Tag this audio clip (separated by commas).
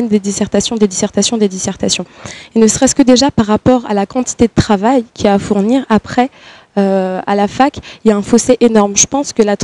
Speech